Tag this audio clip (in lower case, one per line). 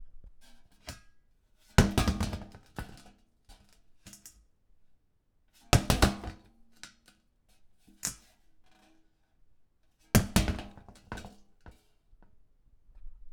thud